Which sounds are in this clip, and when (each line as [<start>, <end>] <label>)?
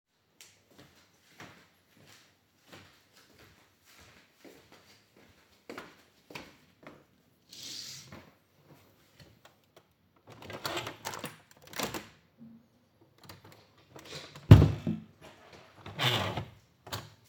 [0.30, 7.39] footsteps
[9.93, 12.52] window
[13.69, 15.12] window
[15.76, 17.14] window